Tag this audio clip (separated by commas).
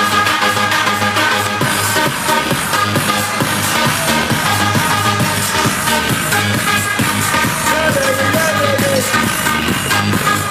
Techno, Electronic music, Music